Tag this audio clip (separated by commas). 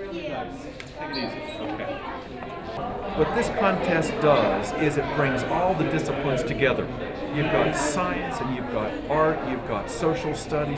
Speech